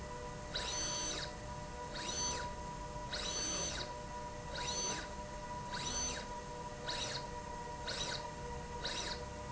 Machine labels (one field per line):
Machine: slide rail